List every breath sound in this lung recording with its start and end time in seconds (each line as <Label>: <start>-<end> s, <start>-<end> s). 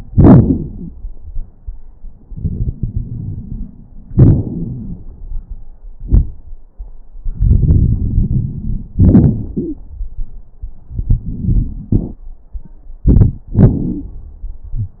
Inhalation: 2.30-3.80 s, 7.32-8.93 s, 13.04-13.46 s
Exhalation: 4.11-5.03 s, 8.98-9.81 s, 13.54-14.21 s
Wheeze: 7.32-8.93 s, 9.52-9.81 s
Crackles: 2.30-3.80 s, 4.11-5.03 s, 13.04-13.46 s, 13.54-14.21 s